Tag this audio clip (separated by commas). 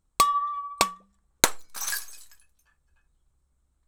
Shatter, Glass